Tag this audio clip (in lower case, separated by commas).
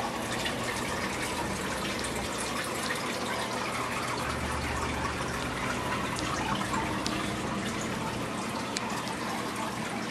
liquid